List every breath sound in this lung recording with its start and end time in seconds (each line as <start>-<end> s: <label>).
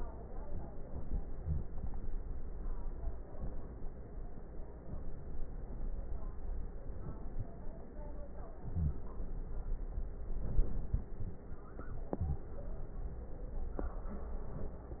1.32-1.72 s: inhalation
1.37-1.72 s: wheeze
8.63-8.99 s: inhalation
8.63-8.99 s: wheeze
10.31-11.43 s: inhalation
12.06-12.49 s: inhalation